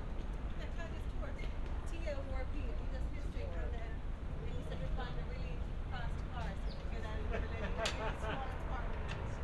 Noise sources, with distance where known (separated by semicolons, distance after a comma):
medium-sounding engine, far; person or small group talking, near